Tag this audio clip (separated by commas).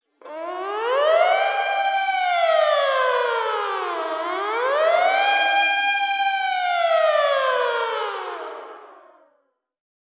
Motor vehicle (road), Siren, Alarm, Vehicle